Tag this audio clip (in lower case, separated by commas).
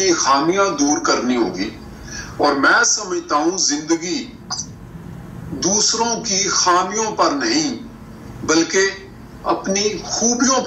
speech